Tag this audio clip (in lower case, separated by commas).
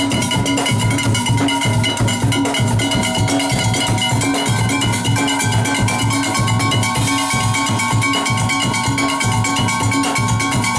music